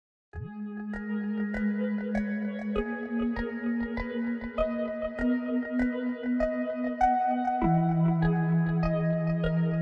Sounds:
xylophone
glockenspiel
mallet percussion

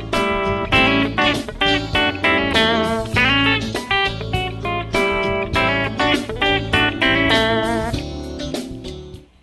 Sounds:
guitar
music
plucked string instrument
country
electric guitar
strum
musical instrument

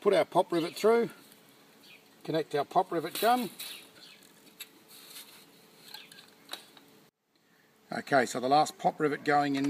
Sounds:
mechanisms

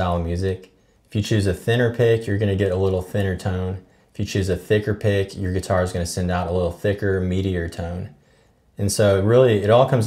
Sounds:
speech

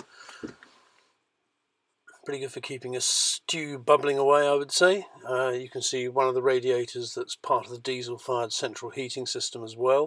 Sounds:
speech

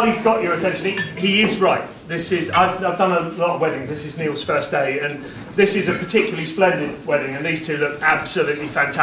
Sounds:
speech

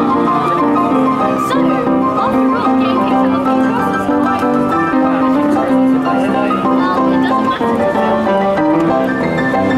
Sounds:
playing piano

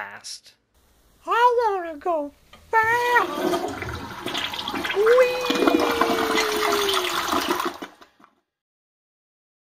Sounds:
toilet flush
speech

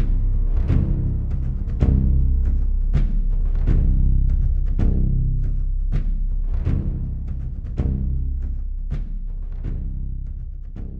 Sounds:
timpani

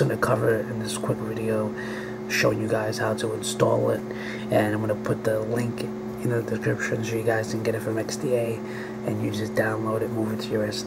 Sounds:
speech

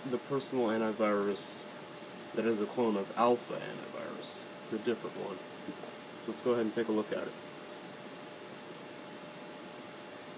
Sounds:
speech

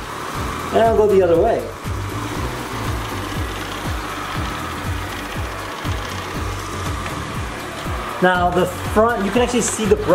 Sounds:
vacuum cleaner cleaning floors

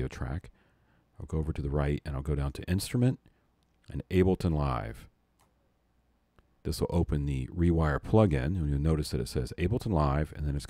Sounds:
speech

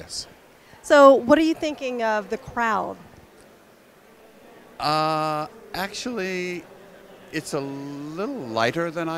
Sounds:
speech

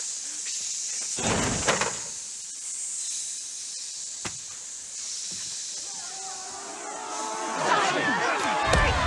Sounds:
speech

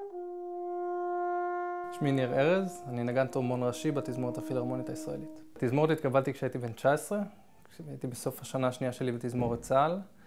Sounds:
trumpet
brass instrument

